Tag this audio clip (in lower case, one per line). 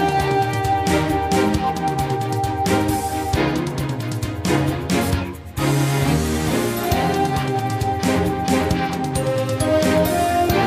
music